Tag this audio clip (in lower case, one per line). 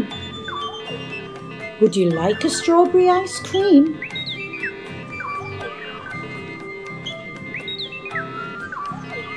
ice cream van